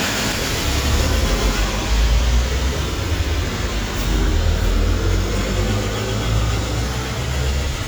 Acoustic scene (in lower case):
street